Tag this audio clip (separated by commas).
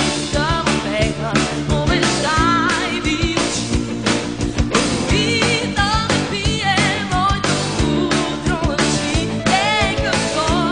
Rhythm and blues, Music